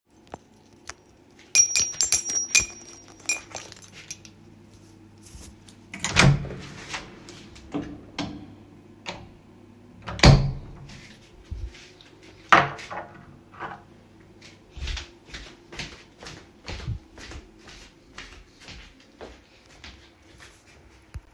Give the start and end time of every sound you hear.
1.4s-4.4s: keys
5.9s-8.6s: door
10.0s-11.2s: door
12.5s-13.4s: door
14.4s-21.3s: footsteps

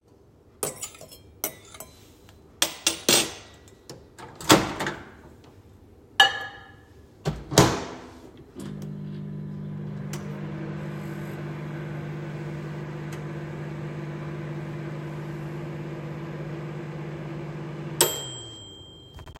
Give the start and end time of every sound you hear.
0.6s-3.4s: cutlery and dishes
3.9s-5.1s: microwave
6.2s-6.7s: cutlery and dishes
7.2s-19.4s: microwave

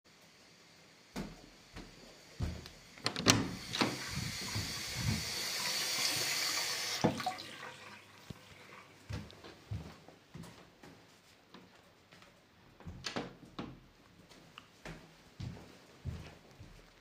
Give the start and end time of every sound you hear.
0.0s-7.7s: running water
1.1s-3.0s: footsteps
3.0s-3.6s: door
9.1s-12.5s: footsteps
13.0s-13.8s: door
14.4s-17.0s: footsteps

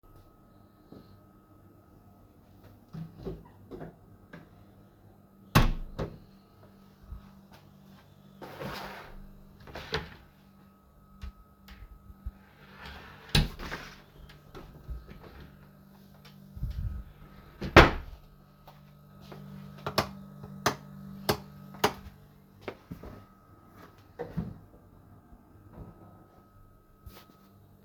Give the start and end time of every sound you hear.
3.0s-4.5s: wardrobe or drawer
5.5s-6.1s: wardrobe or drawer
9.7s-10.3s: wardrobe or drawer
12.7s-13.9s: wardrobe or drawer
17.5s-18.2s: door
19.9s-22.2s: light switch
22.6s-23.0s: footsteps

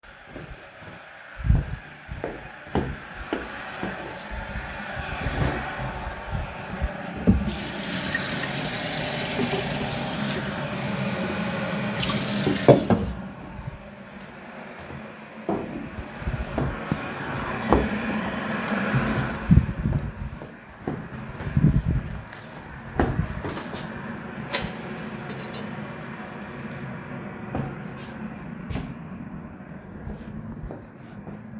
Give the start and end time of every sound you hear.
0.0s-4.8s: footsteps
7.3s-10.6s: running water
11.9s-13.3s: running water
12.6s-13.4s: cutlery and dishes
19.8s-21.2s: footsteps
22.9s-23.7s: footsteps
24.4s-25.7s: cutlery and dishes
27.4s-29.1s: footsteps
29.9s-31.6s: footsteps

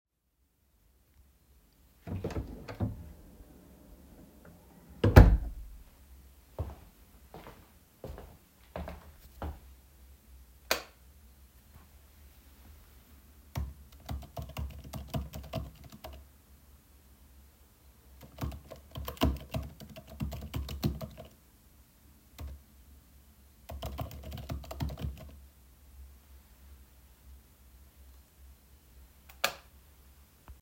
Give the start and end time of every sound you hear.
2.0s-5.9s: door
6.5s-10.3s: footsteps
10.6s-11.2s: light switch
13.3s-16.3s: keyboard typing
18.2s-25.4s: keyboard typing
29.2s-29.8s: light switch

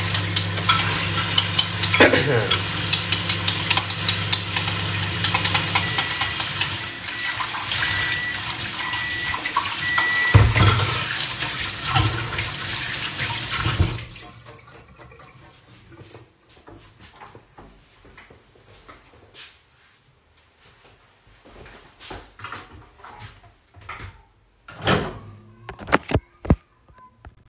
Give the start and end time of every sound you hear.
0.0s-7.5s: cutlery and dishes
0.0s-10.7s: microwave
0.0s-13.9s: running water
9.8s-11.3s: cutlery and dishes
15.3s-19.8s: footsteps
21.2s-24.2s: footsteps
24.7s-25.4s: microwave

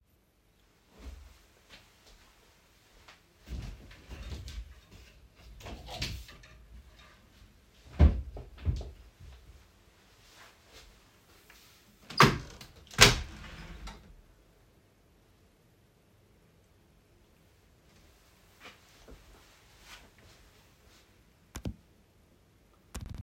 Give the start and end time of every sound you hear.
1.0s-4.9s: footsteps
3.5s-4.8s: wardrobe or drawer
5.4s-6.5s: wardrobe or drawer
7.9s-9.5s: wardrobe or drawer
9.2s-11.6s: footsteps
11.9s-14.1s: window

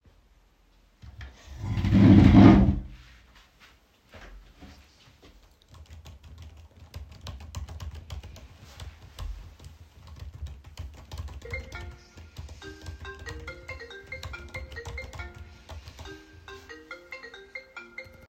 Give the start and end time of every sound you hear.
5.7s-16.2s: keyboard typing
11.7s-18.3s: phone ringing

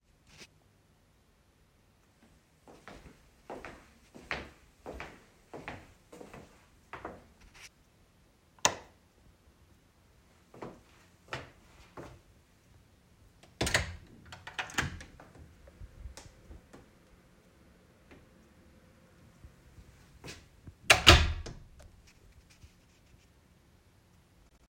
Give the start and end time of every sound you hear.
2.6s-7.7s: footsteps
8.6s-8.9s: light switch
10.5s-12.2s: footsteps
13.4s-15.3s: door
20.7s-21.5s: door

